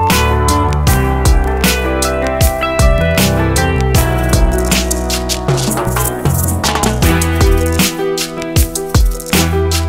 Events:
[0.01, 9.85] music

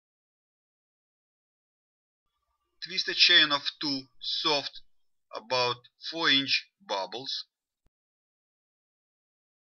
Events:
[2.22, 8.12] background noise
[2.75, 4.78] man speaking
[5.25, 5.88] man speaking
[5.97, 6.66] man speaking
[6.82, 7.95] man speaking

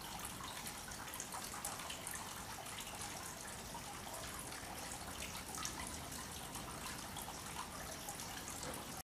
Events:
[0.00, 8.98] mechanisms
[0.00, 8.98] trickle
[8.61, 8.73] tap

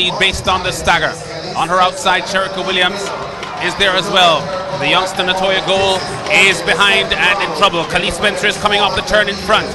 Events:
[0.00, 3.08] man speaking
[0.00, 9.74] crowd
[0.00, 9.74] music
[3.60, 6.09] man speaking
[6.25, 9.74] man speaking

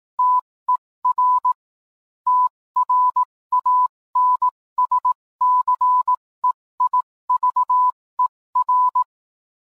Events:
[0.15, 0.38] beep
[0.64, 0.75] beep
[0.99, 1.51] beep
[2.23, 2.46] beep
[2.73, 3.23] beep
[3.49, 3.85] beep
[4.11, 4.48] beep
[4.73, 5.10] beep
[5.38, 6.15] beep
[6.39, 6.49] beep
[6.75, 6.98] beep
[7.26, 7.90] beep
[8.15, 8.25] beep
[8.52, 9.01] beep

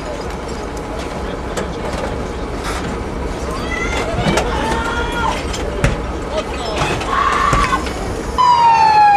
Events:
[0.00, 0.22] speech
[0.00, 0.81] generic impact sounds
[0.00, 9.15] background noise
[0.00, 9.15] engine
[0.97, 1.19] generic impact sounds
[0.99, 7.05] speech
[1.56, 2.17] generic impact sounds
[2.65, 2.91] generic impact sounds
[3.46, 5.40] female speech
[3.90, 4.50] generic impact sounds
[4.71, 4.84] generic impact sounds
[5.36, 5.66] generic impact sounds
[5.84, 6.02] generic impact sounds
[6.80, 7.69] generic impact sounds
[6.81, 7.90] shout
[8.38, 9.15] emergency vehicle
[8.38, 9.15] siren

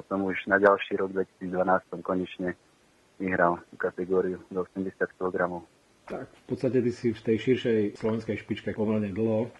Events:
[0.00, 9.55] background noise
[0.07, 1.24] male speech
[1.36, 2.53] male speech
[3.18, 5.62] male speech
[6.01, 6.31] male speech
[6.48, 9.54] male speech
[9.49, 9.55] human sounds

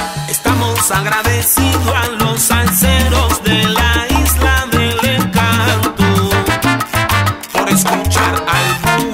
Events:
[0.00, 9.13] music
[0.40, 6.34] male singing
[7.50, 9.13] male singing

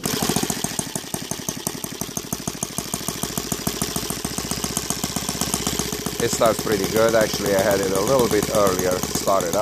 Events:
[0.00, 9.61] engine
[6.18, 9.61] man speaking

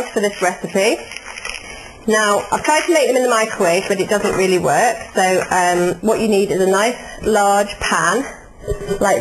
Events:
[0.00, 1.06] woman speaking
[0.00, 9.20] mechanisms
[0.18, 1.82] crinkling
[2.07, 6.96] woman speaking
[2.33, 4.65] crinkling
[4.22, 4.62] generic impact sounds
[5.36, 5.50] generic impact sounds
[7.24, 8.28] woman speaking

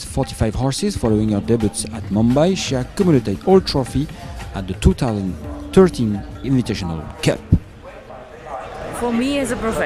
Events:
[0.00, 0.32] wind noise (microphone)
[0.00, 6.79] music
[0.00, 9.85] wind
[0.13, 4.15] male speech
[0.93, 1.01] wind noise (microphone)
[4.34, 5.27] male speech
[4.79, 4.92] wind noise (microphone)
[5.62, 5.98] male speech
[6.39, 7.53] male speech
[7.47, 7.58] wind noise (microphone)
[9.03, 9.85] woman speaking

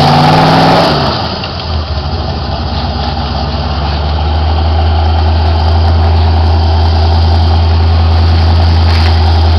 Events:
[0.00, 1.08] revving
[0.00, 9.55] medium engine (mid frequency)
[8.87, 9.16] generic impact sounds

